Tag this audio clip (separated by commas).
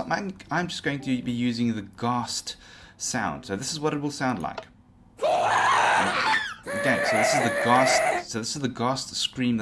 Speech